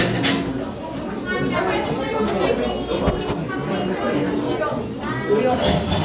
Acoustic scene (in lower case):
cafe